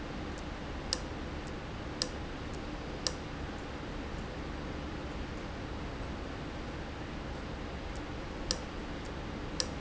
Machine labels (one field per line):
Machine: valve